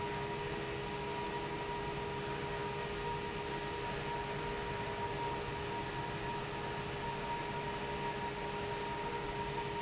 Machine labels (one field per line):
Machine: fan